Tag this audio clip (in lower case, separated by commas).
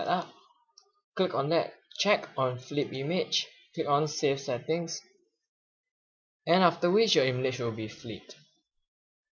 speech